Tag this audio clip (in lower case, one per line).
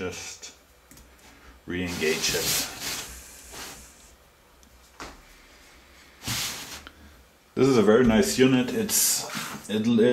tools